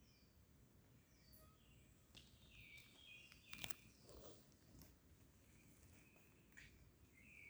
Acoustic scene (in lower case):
park